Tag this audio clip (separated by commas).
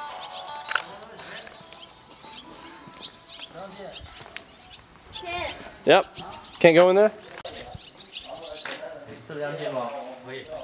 Speech, outside, rural or natural, Music